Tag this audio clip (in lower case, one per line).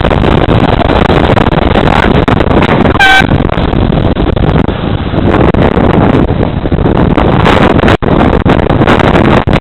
vehicle